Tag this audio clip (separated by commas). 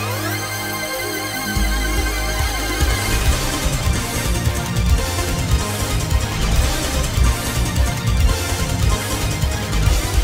Music